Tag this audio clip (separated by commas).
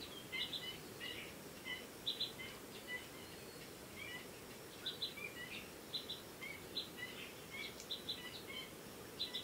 bird call, Chirp, Bird